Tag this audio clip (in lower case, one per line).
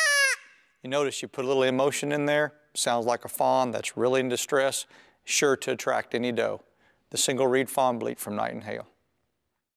speech